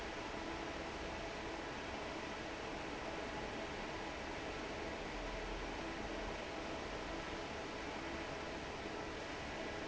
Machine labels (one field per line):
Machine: fan